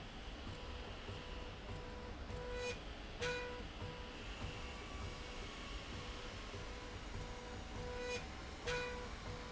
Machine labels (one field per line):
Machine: slide rail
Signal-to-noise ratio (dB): 6 dB